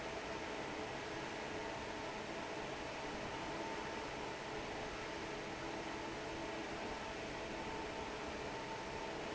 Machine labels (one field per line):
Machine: fan